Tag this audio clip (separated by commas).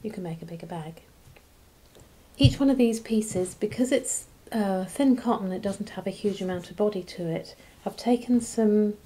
Speech